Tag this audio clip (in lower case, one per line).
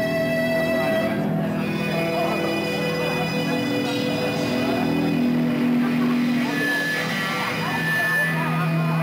music
speech